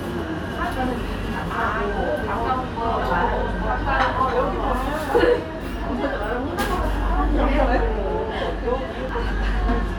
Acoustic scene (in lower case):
restaurant